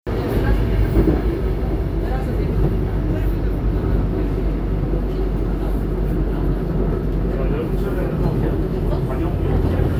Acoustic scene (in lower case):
subway train